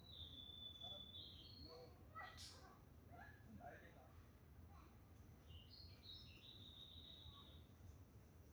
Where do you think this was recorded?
in a park